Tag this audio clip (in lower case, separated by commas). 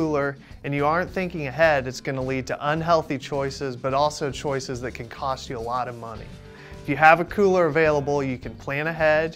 speech, music